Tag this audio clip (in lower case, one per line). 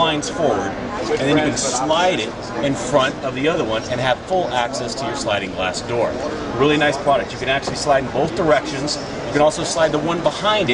speech